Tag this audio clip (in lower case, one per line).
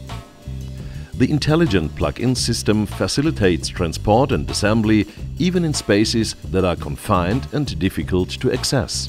music
speech